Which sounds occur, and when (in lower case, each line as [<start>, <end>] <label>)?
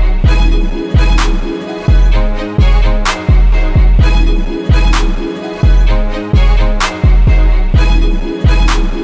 [0.01, 9.03] music